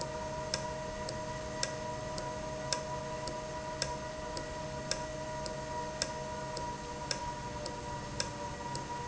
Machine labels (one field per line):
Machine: valve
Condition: normal